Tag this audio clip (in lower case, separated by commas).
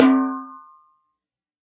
musical instrument, snare drum, percussion, music, drum